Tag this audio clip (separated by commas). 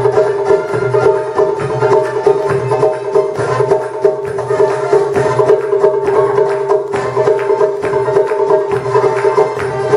Music